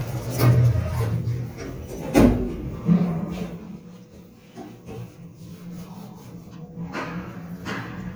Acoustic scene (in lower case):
elevator